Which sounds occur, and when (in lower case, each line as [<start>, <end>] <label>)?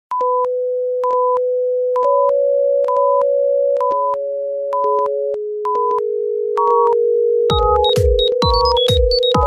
[0.23, 9.45] sine wave
[6.57, 7.04] generic impact sounds
[7.51, 9.45] music